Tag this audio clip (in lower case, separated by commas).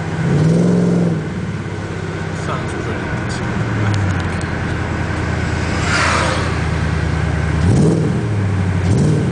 speech, car, vehicle